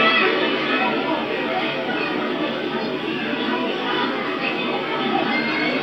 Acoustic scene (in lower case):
park